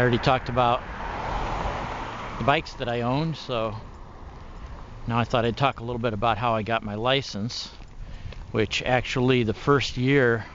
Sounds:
vehicle, speech

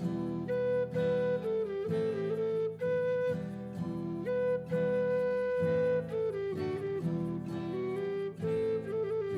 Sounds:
flute

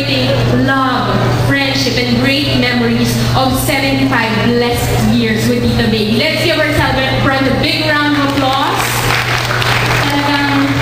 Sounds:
speech, inside a large room or hall

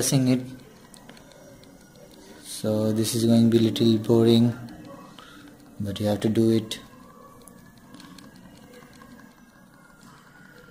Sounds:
speech, inside a small room

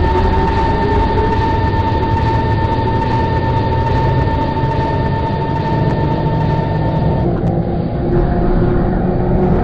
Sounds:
vehicle

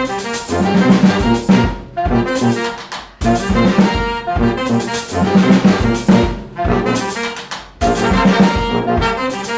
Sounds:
music, jazz, drum

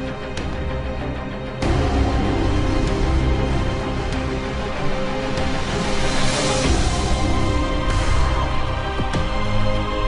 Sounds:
dubstep, music, electronic music

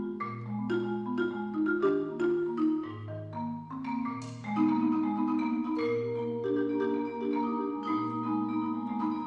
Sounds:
vibraphone, xylophone, music

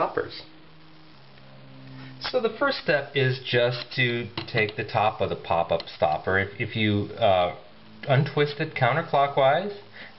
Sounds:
speech

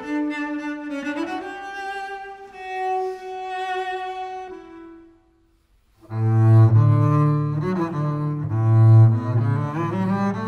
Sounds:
playing cello, bowed string instrument, cello, double bass

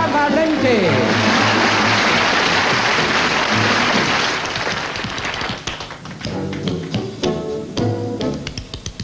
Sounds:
tap dancing

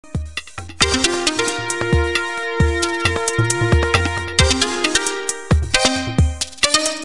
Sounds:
background music, music

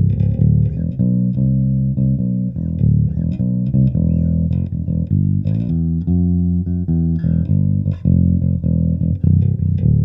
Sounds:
music

